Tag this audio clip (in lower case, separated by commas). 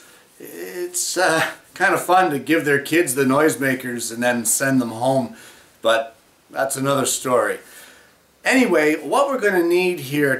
speech